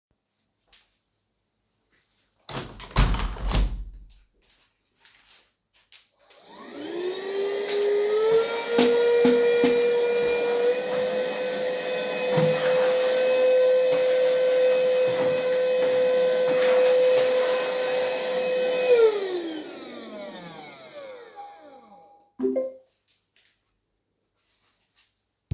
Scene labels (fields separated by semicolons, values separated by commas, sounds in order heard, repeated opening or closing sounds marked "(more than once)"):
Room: living room; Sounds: vacuum cleaner, phone ringing